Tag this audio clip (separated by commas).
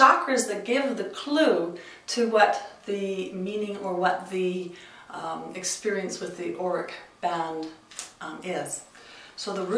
Speech